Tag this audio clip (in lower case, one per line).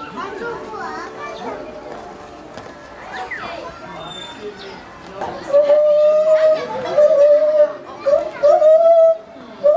gibbon howling